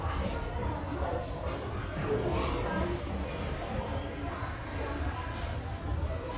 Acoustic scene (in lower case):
restaurant